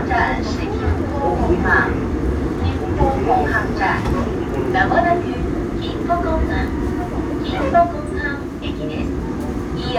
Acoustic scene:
subway train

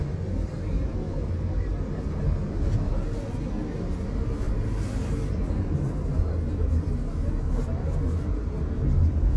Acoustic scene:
car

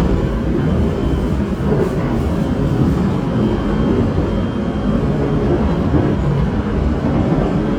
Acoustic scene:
subway train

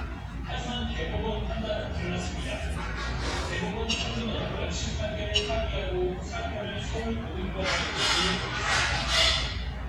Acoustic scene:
restaurant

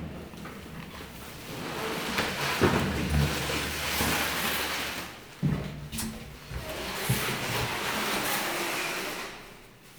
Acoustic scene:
elevator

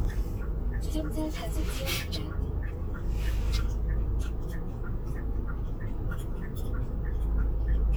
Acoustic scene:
car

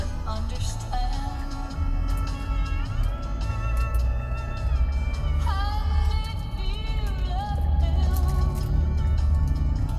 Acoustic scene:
car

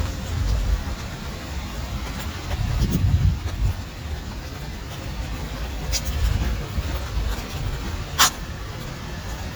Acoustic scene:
residential area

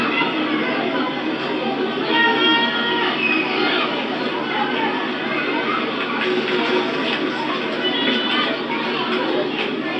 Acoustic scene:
park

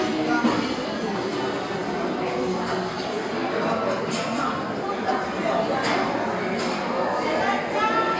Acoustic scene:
restaurant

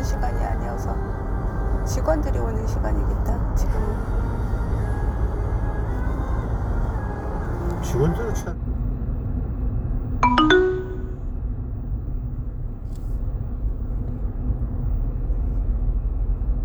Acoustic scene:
car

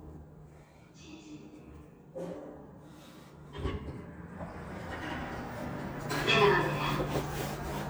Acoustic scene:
elevator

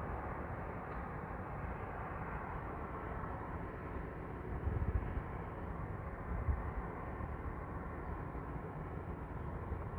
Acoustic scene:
street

